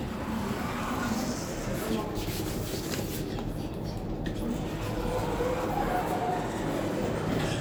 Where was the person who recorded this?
in an elevator